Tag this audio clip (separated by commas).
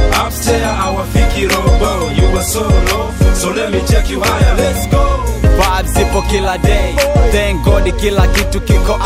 Music, Pop music